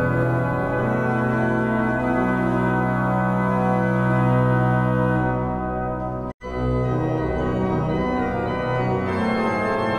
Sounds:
piano
keyboard (musical)
playing piano
music
musical instrument

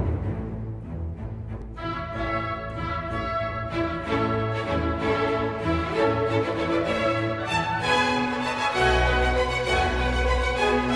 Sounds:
playing timpani

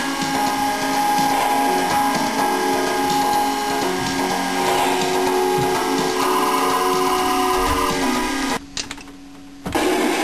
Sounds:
music

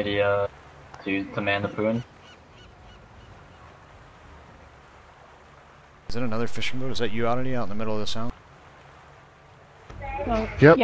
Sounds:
speech
music

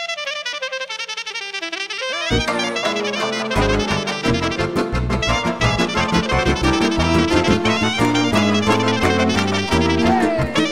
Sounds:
musical instrument
classical music
music
jazz
orchestra

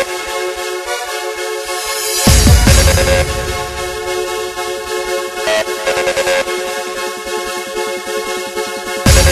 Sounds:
electronic music
techno
music

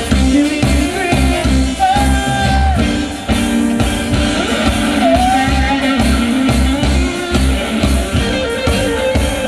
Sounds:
music
funk

